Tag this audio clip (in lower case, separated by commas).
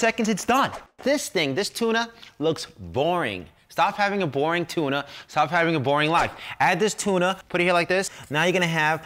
speech